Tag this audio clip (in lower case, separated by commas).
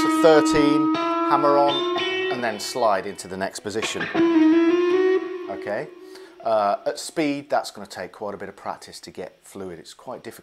plucked string instrument, speech, musical instrument, tapping (guitar technique), guitar, music